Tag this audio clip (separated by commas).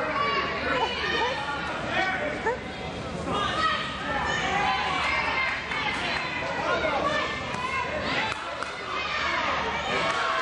inside a public space, Speech